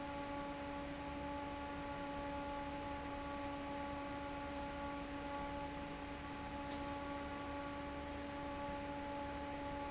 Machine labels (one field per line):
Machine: fan